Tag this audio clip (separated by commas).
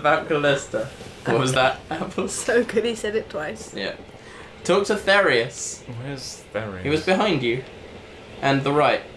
Speech